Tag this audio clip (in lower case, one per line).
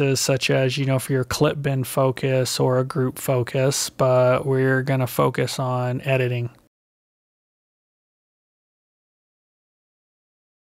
speech